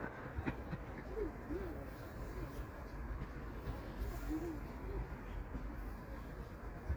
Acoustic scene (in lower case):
park